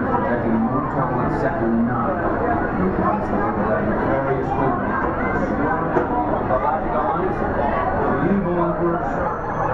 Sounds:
speech

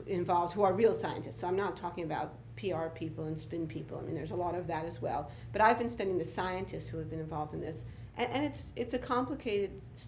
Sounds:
speech

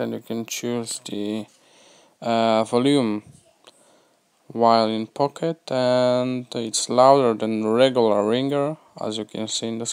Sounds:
speech

